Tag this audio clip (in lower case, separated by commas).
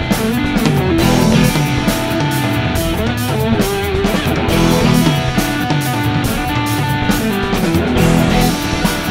bass guitar, drum, heavy metal, progressive rock, guitar, musical instrument, music